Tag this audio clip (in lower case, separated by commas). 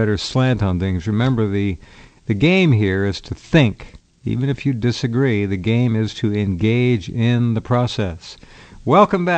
speech